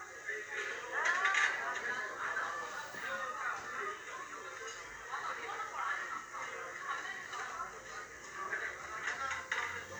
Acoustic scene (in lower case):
restaurant